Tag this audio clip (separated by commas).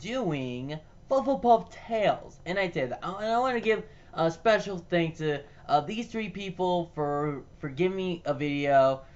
Speech